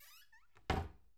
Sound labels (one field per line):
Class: cupboard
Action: closing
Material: wooden